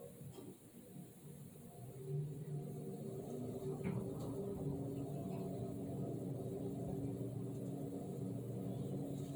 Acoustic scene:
elevator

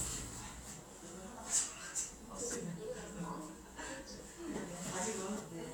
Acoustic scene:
elevator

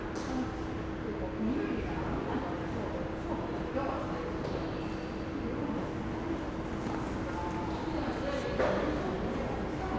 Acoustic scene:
subway station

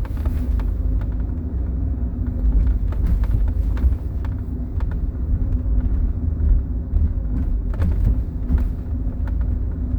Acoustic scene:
car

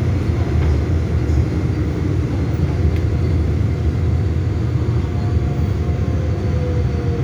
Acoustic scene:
subway train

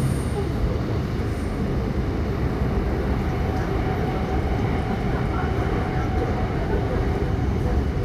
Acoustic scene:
subway train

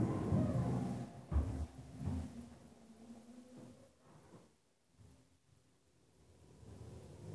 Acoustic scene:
elevator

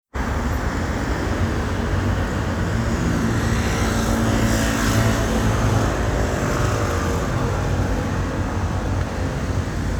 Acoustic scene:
street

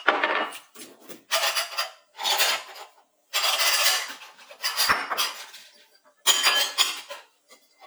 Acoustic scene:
kitchen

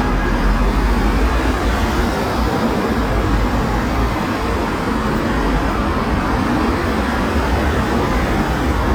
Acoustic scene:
street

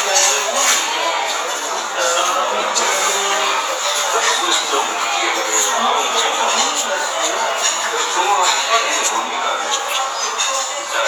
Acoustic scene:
restaurant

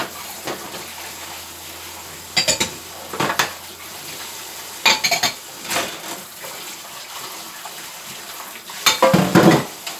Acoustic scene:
kitchen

